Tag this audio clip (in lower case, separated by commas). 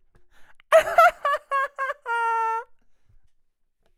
human voice, laughter